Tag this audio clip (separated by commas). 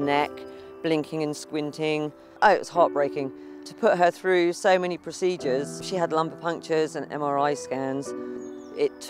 Speech, Music